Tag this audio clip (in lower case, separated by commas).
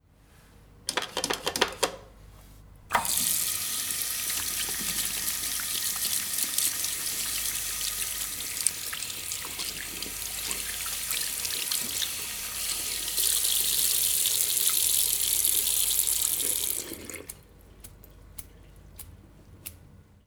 home sounds, sink (filling or washing), hands